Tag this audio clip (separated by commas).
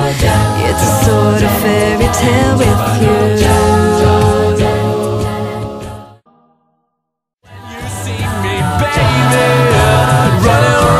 Independent music, Music